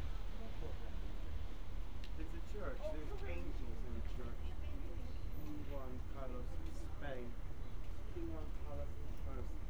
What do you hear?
person or small group talking